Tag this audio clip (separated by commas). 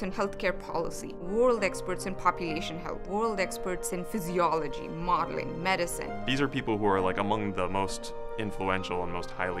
Speech, Music